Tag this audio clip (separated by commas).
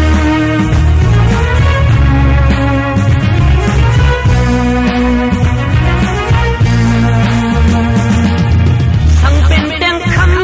Music